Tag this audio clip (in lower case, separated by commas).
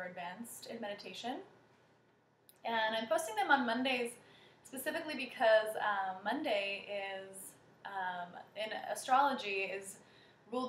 speech